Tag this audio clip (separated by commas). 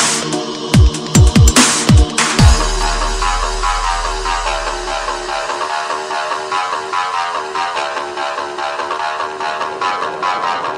Music, Dubstep, Electronic music